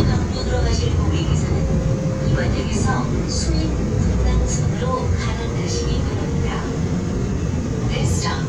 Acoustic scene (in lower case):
subway train